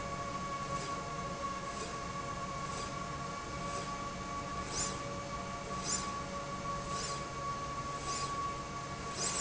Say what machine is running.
slide rail